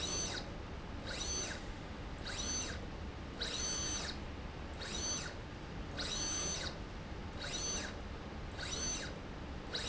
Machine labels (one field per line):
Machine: slide rail